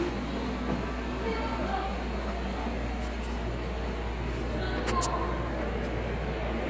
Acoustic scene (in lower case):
subway station